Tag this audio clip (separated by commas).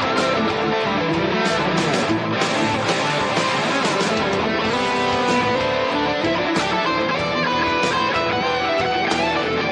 Music, Electric guitar, Guitar, Strum, Musical instrument, Plucked string instrument